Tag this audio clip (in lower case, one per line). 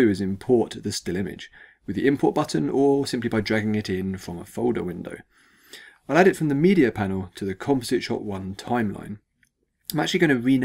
speech